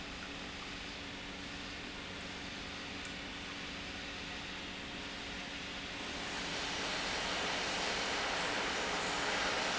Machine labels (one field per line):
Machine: pump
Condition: normal